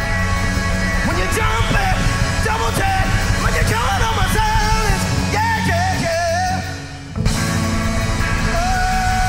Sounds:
rhythm and blues
music
middle eastern music

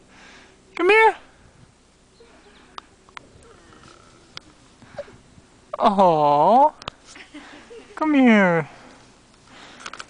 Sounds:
dog
domestic animals
speech
outside, rural or natural

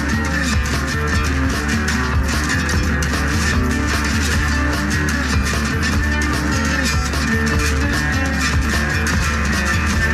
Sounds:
music

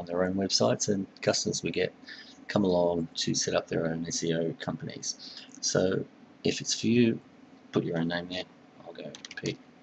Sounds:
speech

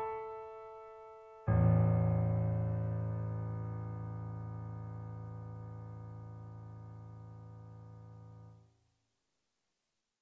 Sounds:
piano
musical instrument
keyboard (musical)

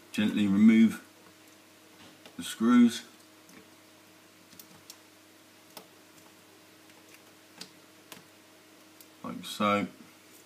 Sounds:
speech

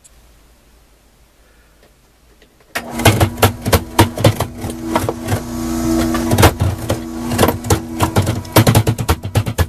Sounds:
wood

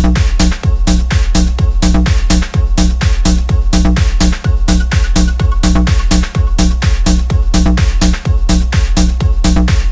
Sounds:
music

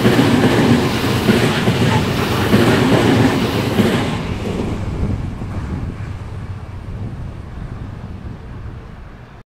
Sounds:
train
vehicle
rail transport
railroad car

